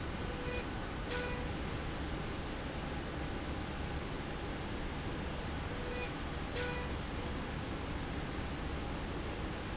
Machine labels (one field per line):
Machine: slide rail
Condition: normal